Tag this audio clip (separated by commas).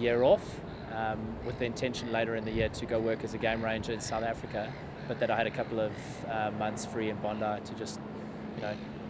Speech